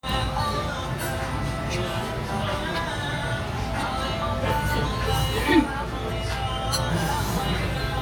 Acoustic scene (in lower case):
restaurant